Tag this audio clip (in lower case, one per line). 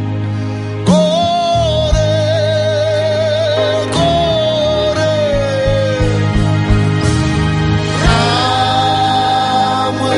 singing
music